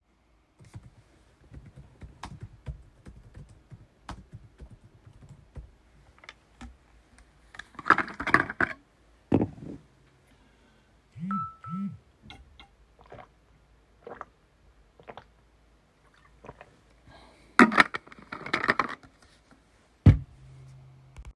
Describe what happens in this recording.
i typed in my keyboard, opened my water bottle, a notication came in my phone , i gulped the water from the bottle , closed the water bottle, placed the water bottle on top of the table